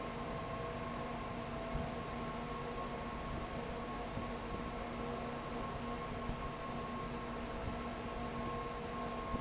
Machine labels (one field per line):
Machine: fan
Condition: abnormal